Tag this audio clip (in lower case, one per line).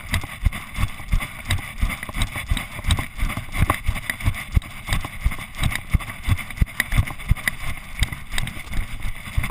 run